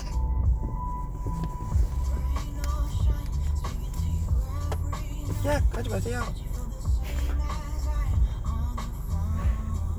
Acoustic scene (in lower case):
car